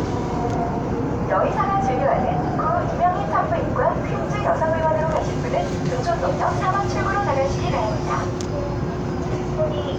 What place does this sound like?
subway train